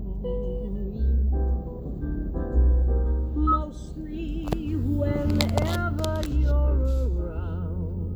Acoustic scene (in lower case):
car